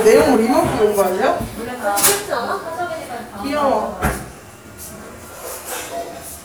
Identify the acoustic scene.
crowded indoor space